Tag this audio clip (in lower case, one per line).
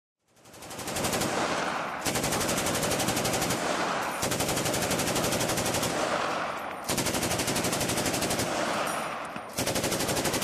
machine gun shooting